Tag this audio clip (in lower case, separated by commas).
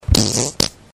fart